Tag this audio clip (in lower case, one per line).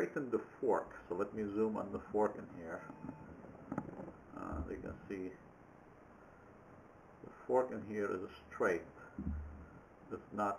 speech